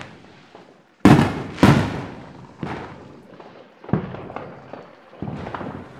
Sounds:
Explosion, Fireworks

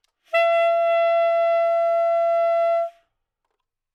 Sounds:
Music, Wind instrument, Musical instrument

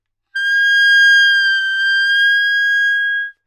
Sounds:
Musical instrument, woodwind instrument, Music

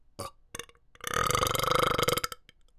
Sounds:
Burping

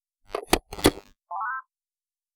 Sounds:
Alarm, Telephone

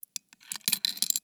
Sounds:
Coin (dropping), Domestic sounds

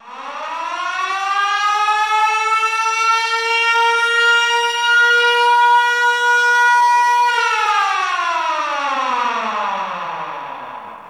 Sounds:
Alarm

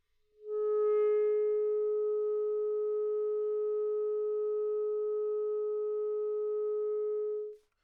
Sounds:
Music, Musical instrument, woodwind instrument

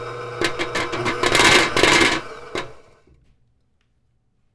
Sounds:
Engine

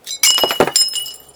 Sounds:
Glass, Shatter

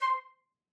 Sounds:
Wind instrument, Musical instrument, Music

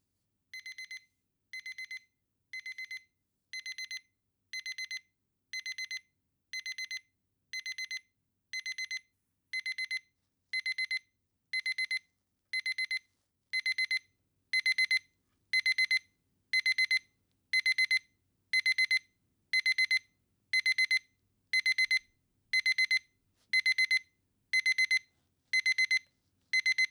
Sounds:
Alarm

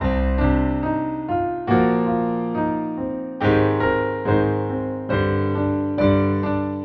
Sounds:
Music, Musical instrument, Piano, Keyboard (musical)

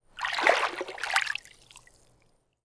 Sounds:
Liquid, splatter, Water

